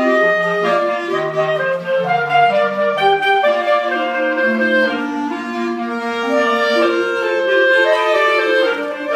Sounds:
playing clarinet
clarinet

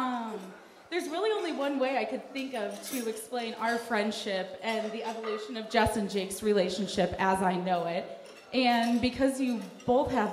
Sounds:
woman speaking
speech
monologue

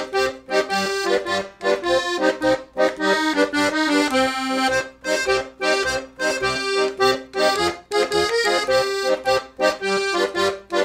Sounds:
playing accordion

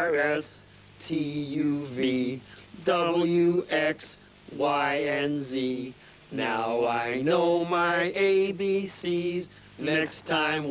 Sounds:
speech

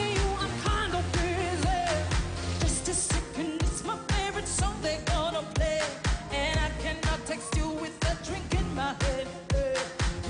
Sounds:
music

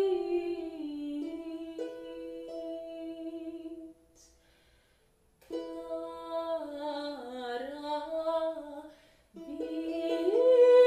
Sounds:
harp
pizzicato

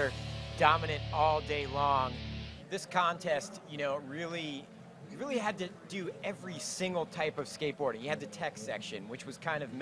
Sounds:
speech
music

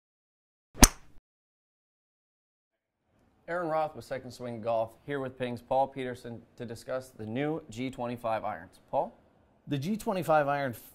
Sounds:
speech

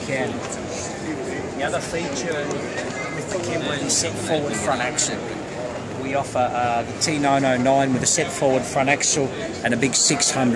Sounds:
speech

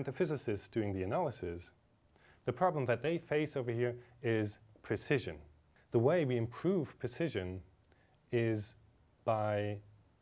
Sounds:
speech

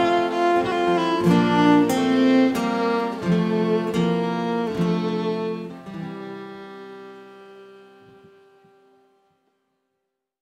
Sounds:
music
saxophone

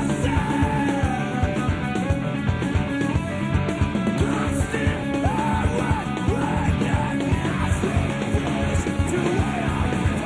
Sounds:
music

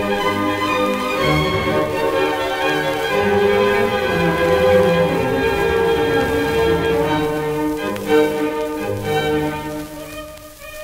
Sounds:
violin
musical instrument
music

